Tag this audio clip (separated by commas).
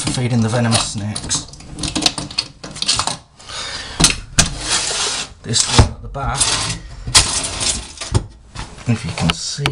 Speech, Wood